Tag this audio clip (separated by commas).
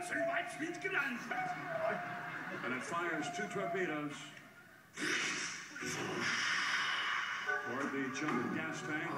Music, Speech